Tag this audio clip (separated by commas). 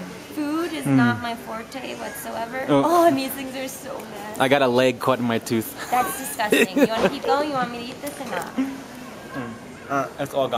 Speech